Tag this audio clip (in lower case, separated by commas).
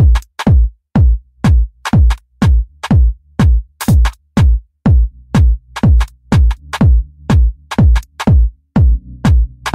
music